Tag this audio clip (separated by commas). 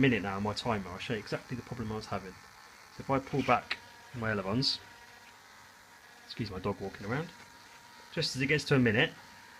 Speech, Male speech, Narration